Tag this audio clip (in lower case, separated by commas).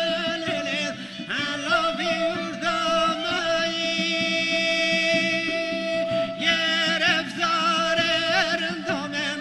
music, traditional music